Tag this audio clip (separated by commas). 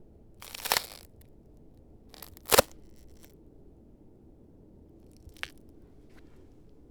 Crack